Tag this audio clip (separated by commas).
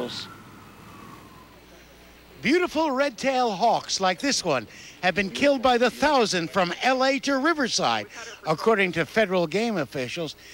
Speech